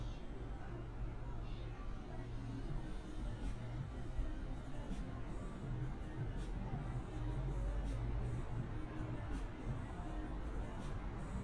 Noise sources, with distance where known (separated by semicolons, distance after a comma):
music from a moving source, near